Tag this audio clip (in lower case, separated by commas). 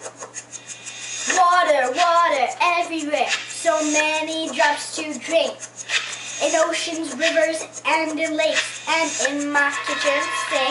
rapping